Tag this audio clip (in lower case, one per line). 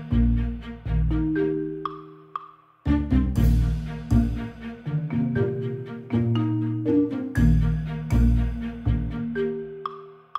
wood block